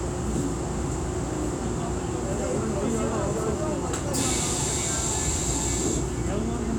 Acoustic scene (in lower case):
subway train